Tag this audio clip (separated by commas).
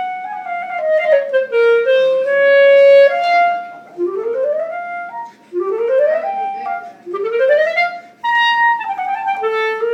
Clarinet, playing clarinet, woodwind instrument, Music, Musical instrument